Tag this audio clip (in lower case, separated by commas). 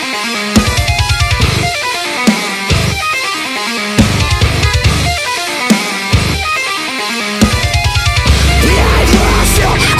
electric guitar, musical instrument, plucked string instrument, guitar, strum, music